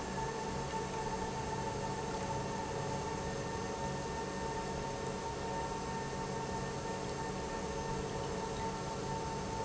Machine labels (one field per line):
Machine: pump